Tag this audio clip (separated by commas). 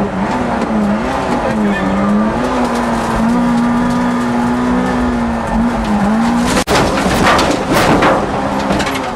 Motor vehicle (road), Car, Speech, Vehicle